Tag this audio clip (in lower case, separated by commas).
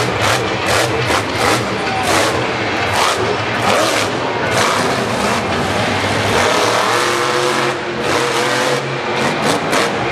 truck, vehicle